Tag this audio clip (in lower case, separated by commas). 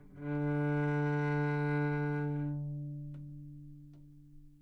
music, bowed string instrument, musical instrument